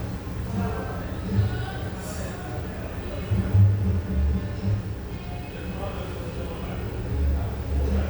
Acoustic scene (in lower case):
cafe